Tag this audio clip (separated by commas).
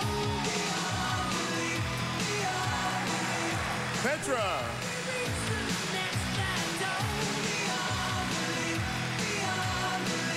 Speech, Music